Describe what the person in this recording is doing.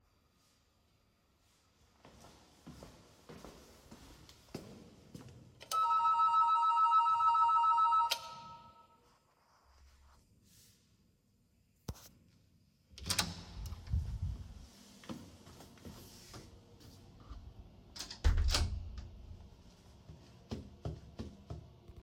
i walked to the door and pressed the doorbell. after waiting for a moment the door opened and i entered the room. then i closed the door behind me.